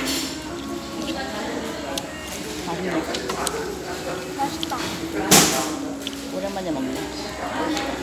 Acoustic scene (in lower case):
restaurant